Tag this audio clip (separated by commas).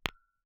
Tap, Glass